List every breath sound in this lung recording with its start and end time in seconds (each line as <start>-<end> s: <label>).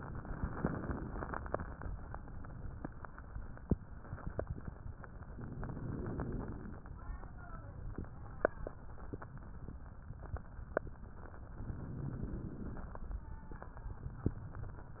0.00-1.60 s: inhalation
5.27-6.87 s: inhalation
11.49-13.10 s: inhalation